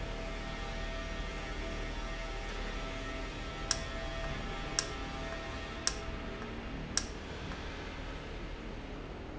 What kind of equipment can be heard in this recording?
valve